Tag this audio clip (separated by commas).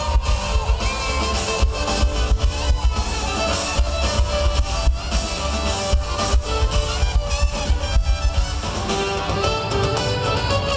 Music, Musical instrument, Violin